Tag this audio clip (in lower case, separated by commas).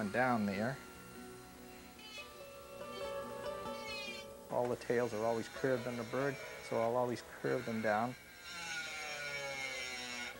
wood, speech, music